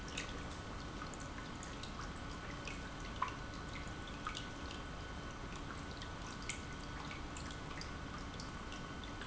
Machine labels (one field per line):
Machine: pump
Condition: normal